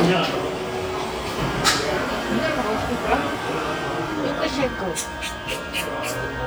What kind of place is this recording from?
cafe